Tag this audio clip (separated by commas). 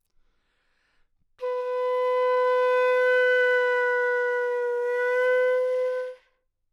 Musical instrument, Wind instrument, Music